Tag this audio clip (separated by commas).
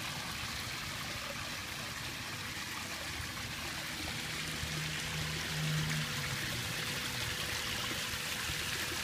Water